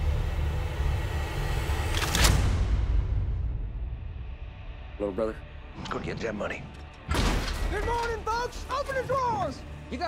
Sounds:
speech

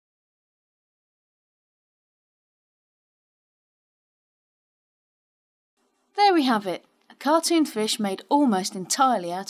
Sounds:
speech

